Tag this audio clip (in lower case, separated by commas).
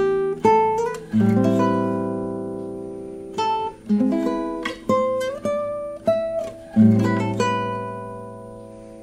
strum, acoustic guitar, music, musical instrument, plucked string instrument, guitar